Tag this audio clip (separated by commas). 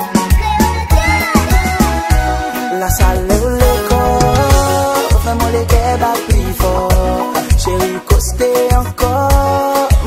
Music